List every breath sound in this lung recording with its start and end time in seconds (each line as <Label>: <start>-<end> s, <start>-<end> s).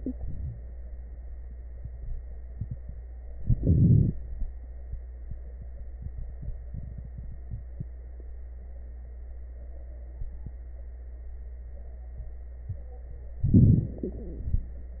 Inhalation: 3.32-4.18 s, 13.44-14.70 s
Crackles: 3.32-4.18 s, 13.44-14.70 s